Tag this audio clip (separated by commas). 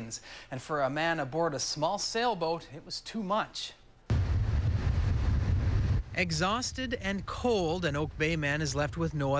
Speech, sailing ship